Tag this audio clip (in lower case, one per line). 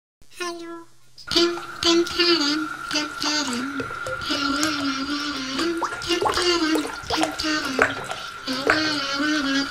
speech